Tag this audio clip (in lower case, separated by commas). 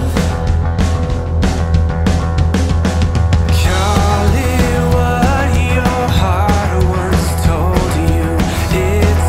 music